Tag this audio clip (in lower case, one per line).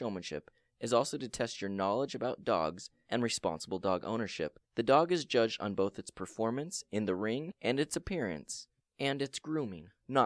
speech